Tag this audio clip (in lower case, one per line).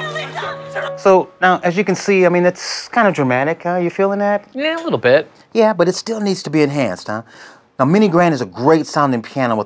speech
music